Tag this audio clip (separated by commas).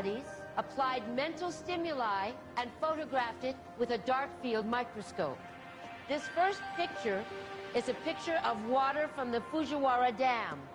Speech, woman speaking, Music